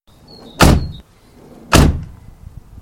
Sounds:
vehicle
car
motor vehicle (road)

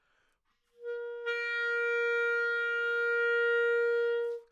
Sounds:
woodwind instrument
music
musical instrument

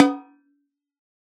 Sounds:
percussion
musical instrument
drum
snare drum
music

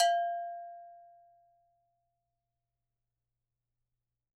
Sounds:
bell

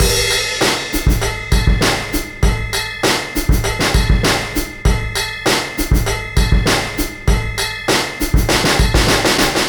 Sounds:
musical instrument
bell
percussion
music
drum kit
drum

